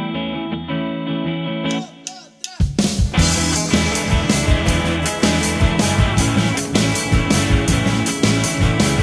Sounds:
music
rock music

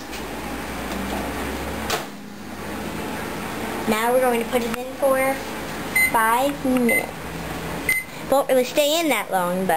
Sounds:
bleep
speech
microwave oven
child speech

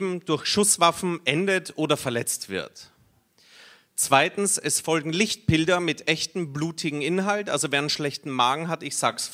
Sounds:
speech

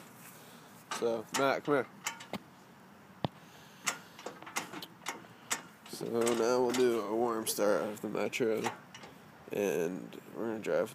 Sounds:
speech

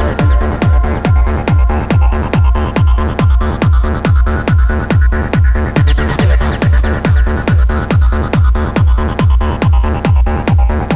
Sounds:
music
techno
electronic music

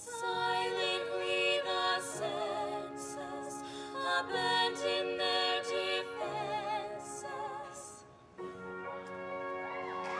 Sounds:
music

